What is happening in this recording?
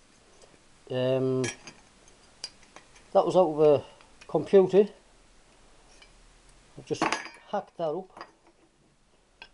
Man speaking and dishes clanking